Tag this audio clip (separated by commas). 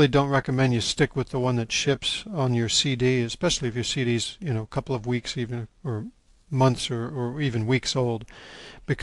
Speech